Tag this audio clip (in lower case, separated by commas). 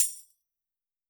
tambourine, percussion, music, musical instrument